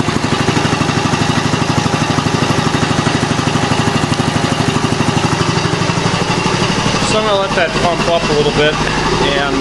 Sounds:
Speech

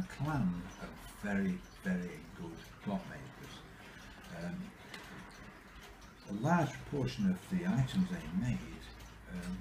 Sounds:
Speech

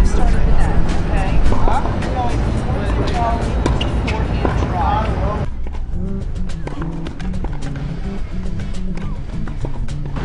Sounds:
playing tennis

